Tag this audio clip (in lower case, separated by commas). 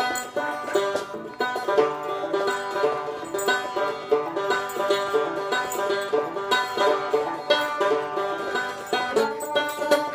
music